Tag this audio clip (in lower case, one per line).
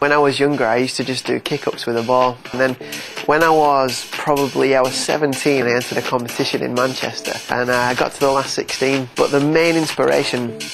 music
speech